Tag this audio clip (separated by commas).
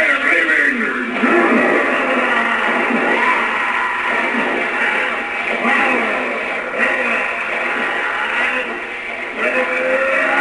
Speech